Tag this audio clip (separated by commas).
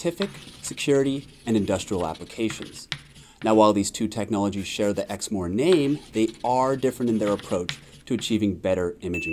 Speech